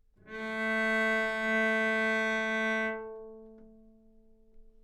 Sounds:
Musical instrument, Music, Bowed string instrument

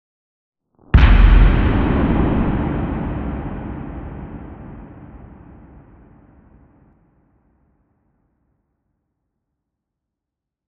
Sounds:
Boom, Explosion

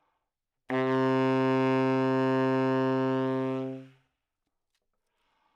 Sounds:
Musical instrument, woodwind instrument, Music

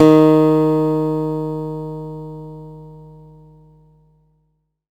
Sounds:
Musical instrument, Acoustic guitar, Guitar, Plucked string instrument, Music

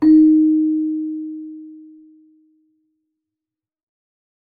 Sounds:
Keyboard (musical), Musical instrument, Music

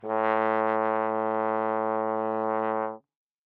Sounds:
Brass instrument, Music, Musical instrument

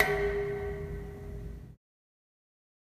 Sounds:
dishes, pots and pans, Domestic sounds

